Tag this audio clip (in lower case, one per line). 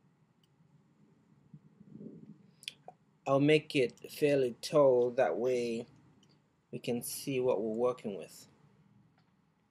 speech